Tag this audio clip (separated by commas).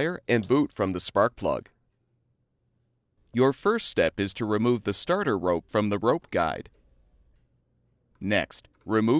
Speech